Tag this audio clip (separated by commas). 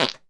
Fart